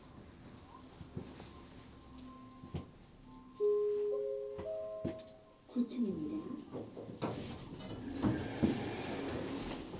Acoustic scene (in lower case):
elevator